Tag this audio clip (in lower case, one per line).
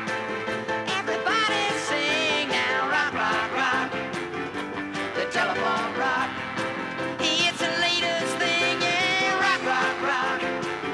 music